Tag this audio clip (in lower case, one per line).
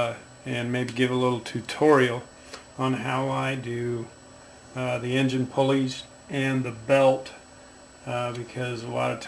speech